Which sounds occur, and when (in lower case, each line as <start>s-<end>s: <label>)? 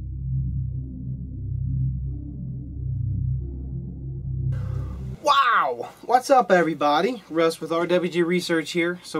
0.0s-5.1s: music